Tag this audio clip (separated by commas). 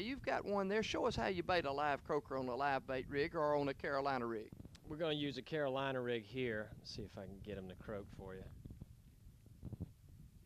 outside, urban or man-made, Speech